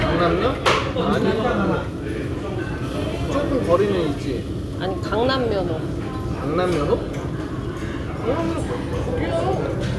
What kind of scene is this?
restaurant